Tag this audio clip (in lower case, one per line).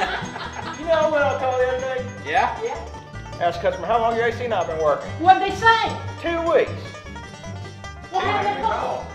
speech
music